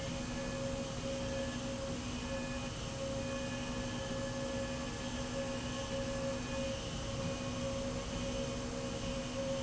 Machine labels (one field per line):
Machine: slide rail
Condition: normal